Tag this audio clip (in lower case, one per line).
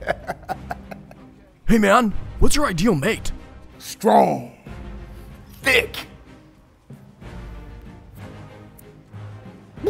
music
speech